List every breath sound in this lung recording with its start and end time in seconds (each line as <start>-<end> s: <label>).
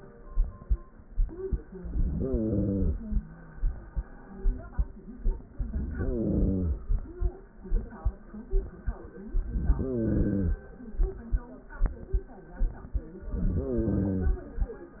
1.68-3.18 s: inhalation
5.51-7.01 s: inhalation
9.32-10.71 s: inhalation
13.20-14.58 s: inhalation